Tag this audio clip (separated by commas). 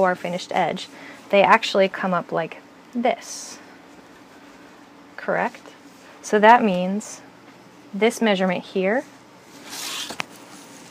Speech